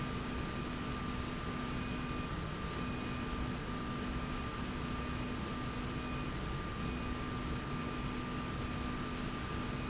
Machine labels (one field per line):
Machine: slide rail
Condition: normal